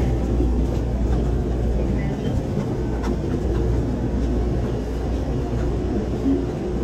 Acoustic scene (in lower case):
subway train